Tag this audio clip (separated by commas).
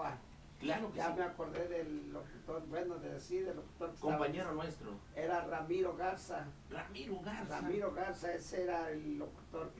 Speech